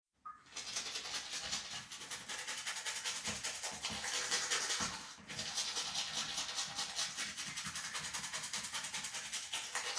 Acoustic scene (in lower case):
restroom